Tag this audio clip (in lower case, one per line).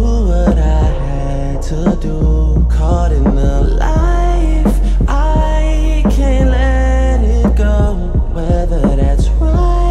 music